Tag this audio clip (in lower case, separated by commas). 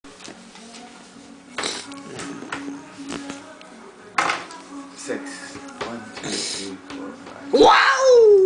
speech, music